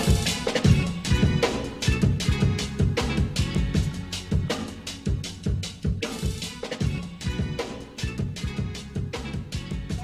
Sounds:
Music, Hip hop music

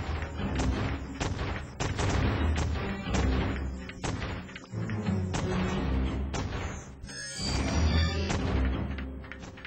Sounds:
Music

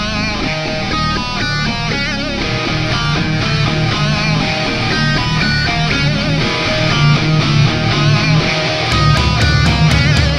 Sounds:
Music

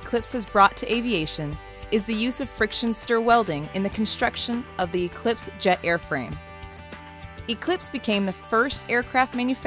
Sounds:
Music, Speech

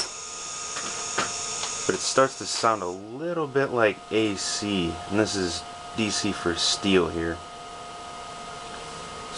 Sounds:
Speech

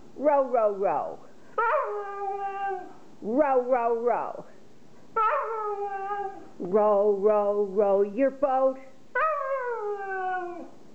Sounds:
Speech

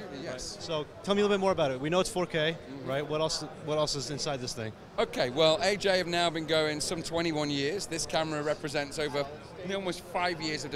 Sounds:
Speech

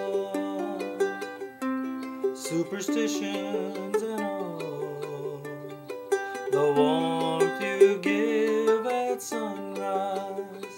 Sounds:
Music, inside a small room, Ukulele

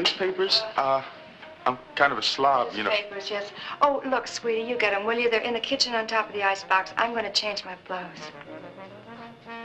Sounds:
Speech, Music

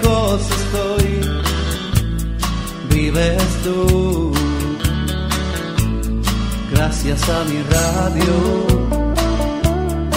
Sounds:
Music

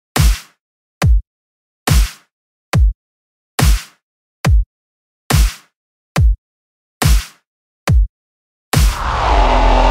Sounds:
Dubstep, Music

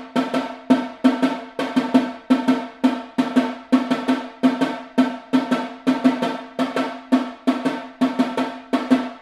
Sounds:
Snare drum, Drum, playing snare drum, Musical instrument, Percussion, Music

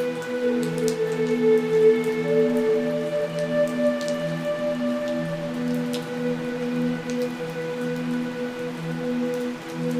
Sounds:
Rain on surface, Rain, Raindrop

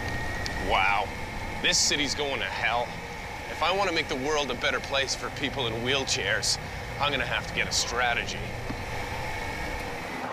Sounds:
Speech

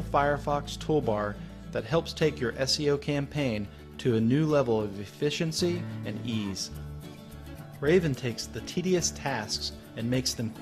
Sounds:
Music, Speech

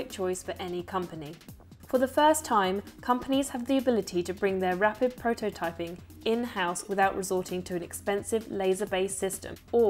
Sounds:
Music, Speech

